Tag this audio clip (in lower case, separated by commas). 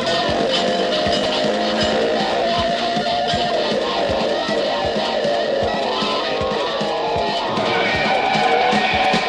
music, cacophony